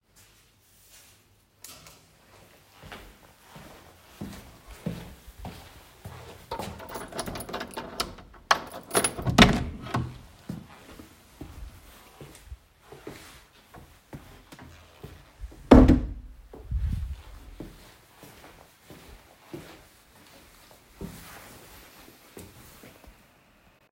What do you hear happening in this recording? I walked down the hallway to my office. I inserted the key unlocked the door and opened it, I walked inside the room then closed the door. Then I walked inside and sat down on my chair.